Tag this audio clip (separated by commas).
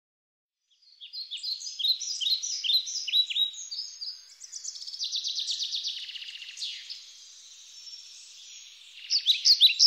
tweet